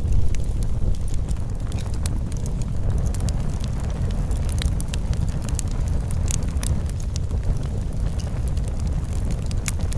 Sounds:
fire crackling

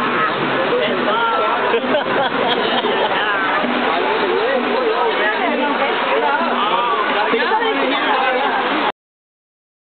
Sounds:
Speech, Music

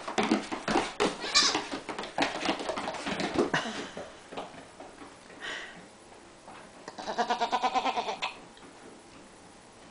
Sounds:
sheep bleating, Sheep, Bleat

